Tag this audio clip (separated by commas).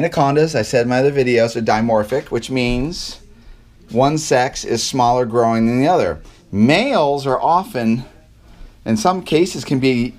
inside a small room, Speech